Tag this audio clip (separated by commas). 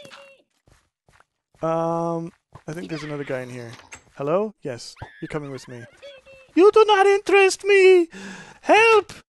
inside a small room, Speech